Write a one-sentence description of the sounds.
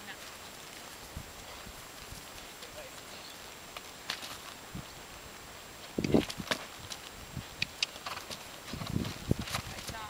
A horse is trotting and neighs lightly